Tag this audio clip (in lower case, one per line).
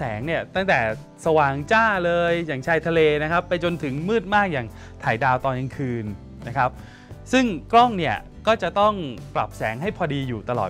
music
speech